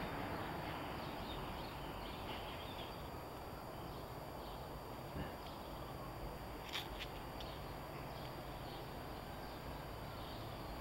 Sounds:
insect

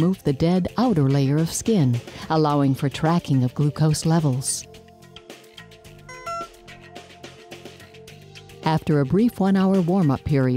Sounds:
music, speech

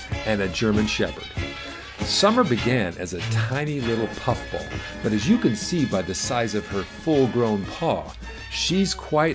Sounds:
speech, music

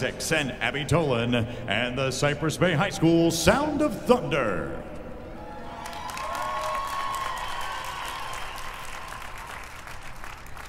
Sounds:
speech

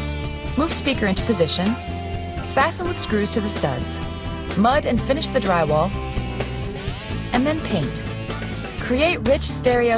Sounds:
music, speech

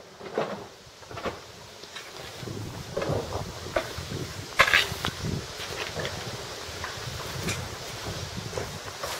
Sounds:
rustling leaves

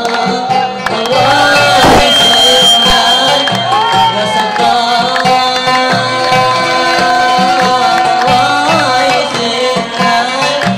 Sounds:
music

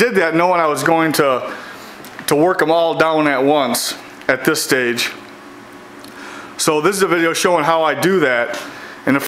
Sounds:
speech

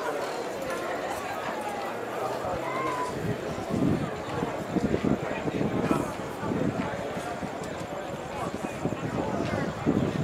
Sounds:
speech, outside, urban or man-made

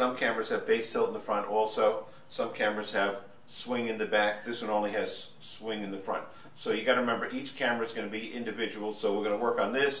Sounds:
speech

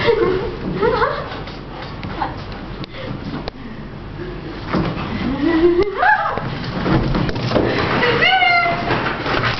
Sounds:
inside a small room, speech, pets, dog, animal

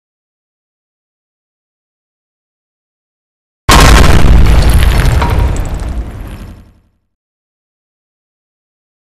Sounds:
boom

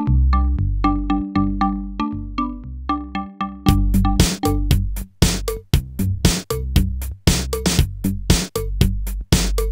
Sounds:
music, drum machine

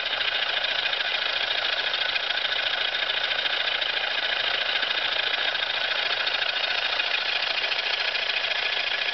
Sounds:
engine, medium engine (mid frequency)

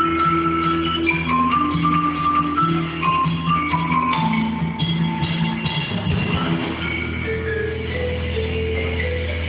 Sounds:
music, percussion

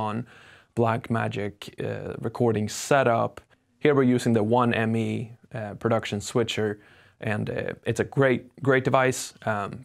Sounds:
speech

